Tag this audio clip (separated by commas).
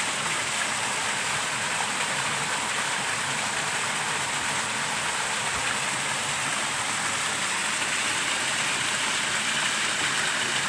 waterfall burbling